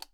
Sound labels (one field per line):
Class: switch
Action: being turned off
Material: plastic